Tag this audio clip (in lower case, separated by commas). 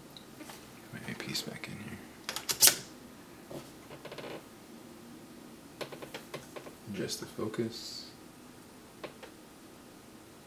speech, inside a small room